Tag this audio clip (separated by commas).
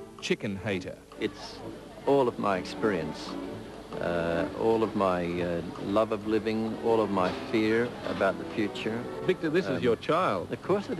Music, Speech